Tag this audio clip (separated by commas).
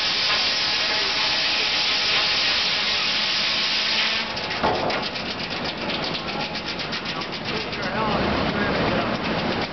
Wood, Speech